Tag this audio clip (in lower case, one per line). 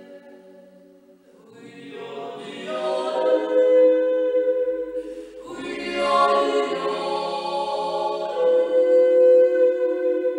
yodelling